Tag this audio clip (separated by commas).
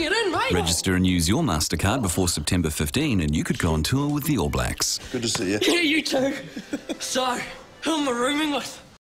Music, Speech